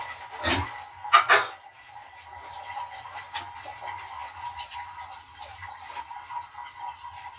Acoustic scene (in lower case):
kitchen